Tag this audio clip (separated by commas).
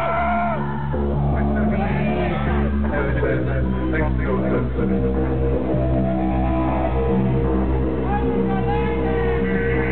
Music